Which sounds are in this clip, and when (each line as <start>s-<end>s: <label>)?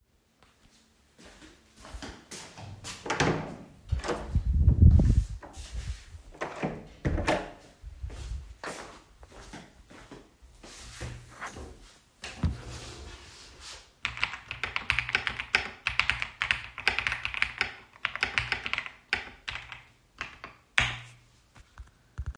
1.1s-3.0s: footsteps
3.0s-3.7s: door
3.8s-4.3s: door
6.4s-7.6s: door
8.0s-11.4s: footsteps
14.0s-21.1s: keyboard typing